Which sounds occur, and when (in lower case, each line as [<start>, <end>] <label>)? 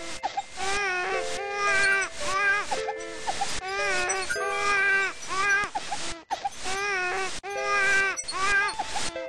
[0.00, 9.25] music
[0.00, 9.25] video game sound